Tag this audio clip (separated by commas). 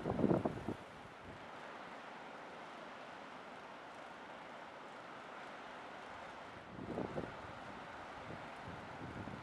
Sailboat